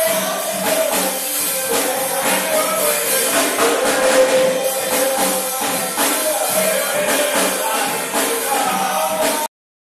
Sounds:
drum
musical instrument
music
drum kit
bass drum

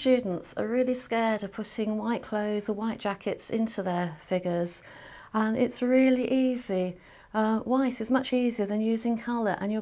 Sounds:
speech

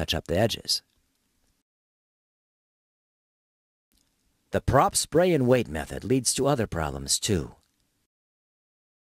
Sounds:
speech

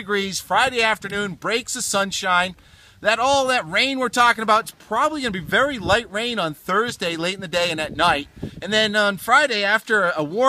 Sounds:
speech

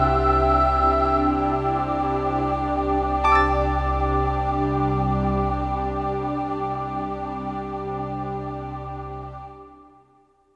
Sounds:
music

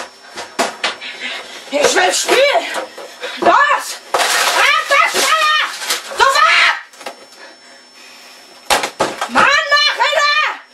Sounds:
speech

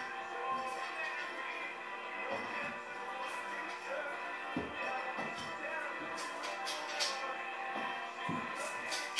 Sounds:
music

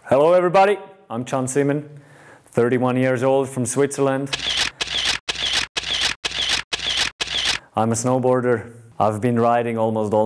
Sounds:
speech

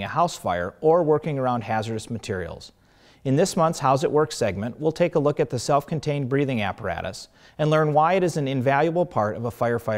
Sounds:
speech

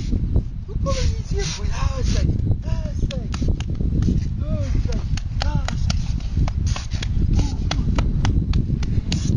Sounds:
outside, rural or natural
speech
animal

